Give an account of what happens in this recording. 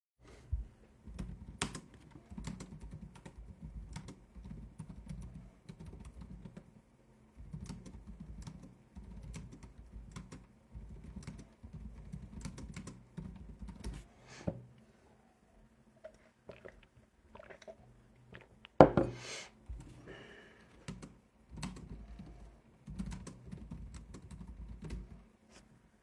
Typing on the keyboard and taking a break to sip on some water and continue to type on my keyboard